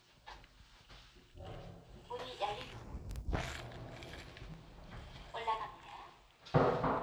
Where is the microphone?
in an elevator